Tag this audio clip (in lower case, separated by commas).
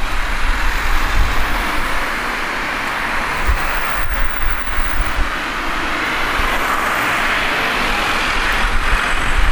motor vehicle (road), roadway noise, vehicle